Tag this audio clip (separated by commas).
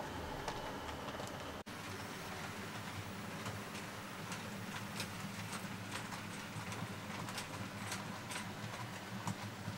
Train